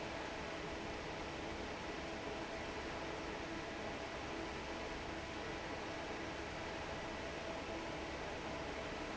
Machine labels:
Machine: fan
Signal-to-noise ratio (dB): 6 dB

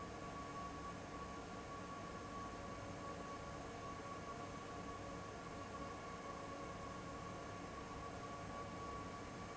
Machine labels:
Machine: fan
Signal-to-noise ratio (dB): 6 dB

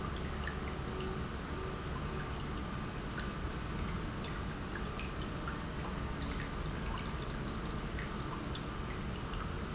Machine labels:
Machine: pump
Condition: normal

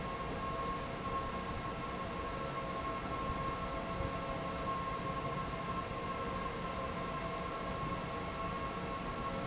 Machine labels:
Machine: fan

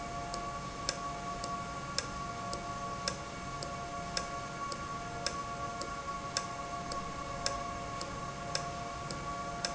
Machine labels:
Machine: valve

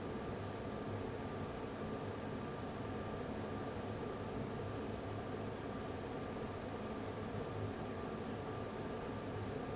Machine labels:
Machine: fan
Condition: abnormal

